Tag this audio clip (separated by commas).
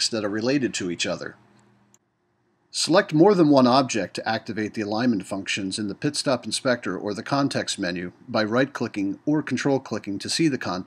Speech